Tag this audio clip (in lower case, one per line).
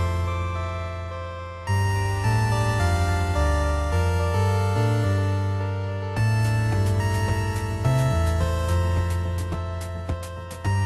music